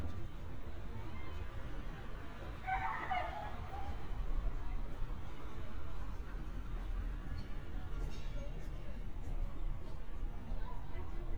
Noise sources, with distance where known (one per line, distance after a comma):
unidentified human voice, far
dog barking or whining